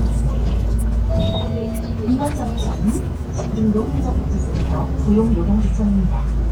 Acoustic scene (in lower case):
bus